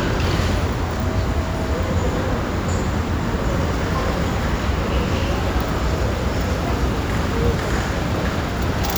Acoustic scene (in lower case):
subway station